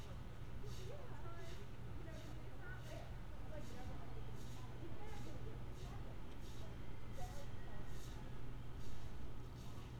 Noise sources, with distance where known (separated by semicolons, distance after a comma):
person or small group talking, far